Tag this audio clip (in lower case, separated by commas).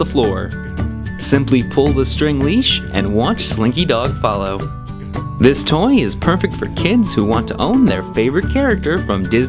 speech, music